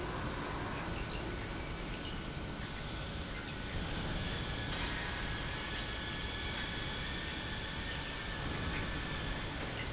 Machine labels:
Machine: pump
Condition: normal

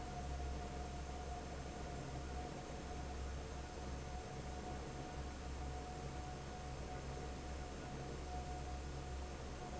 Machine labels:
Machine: fan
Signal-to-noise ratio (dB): 6 dB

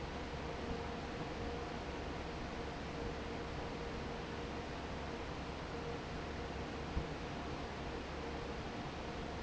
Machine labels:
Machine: fan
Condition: normal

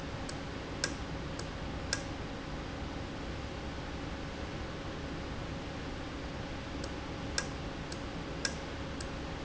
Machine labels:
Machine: valve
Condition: normal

